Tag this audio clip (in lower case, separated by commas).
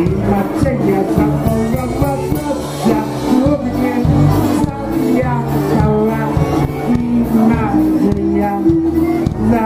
music